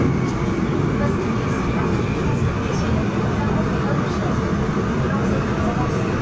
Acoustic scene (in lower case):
subway train